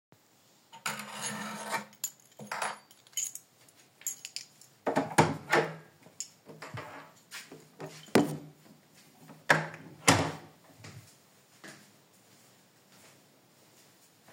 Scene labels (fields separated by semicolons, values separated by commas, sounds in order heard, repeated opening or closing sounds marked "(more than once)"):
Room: hallway; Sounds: keys, door (more than once)